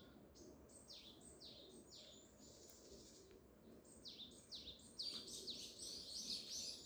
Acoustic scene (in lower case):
park